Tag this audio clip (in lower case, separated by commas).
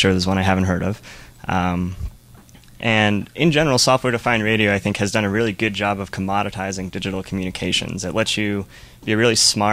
speech